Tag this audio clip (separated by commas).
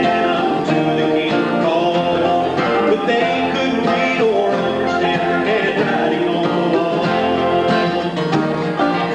Speech, Music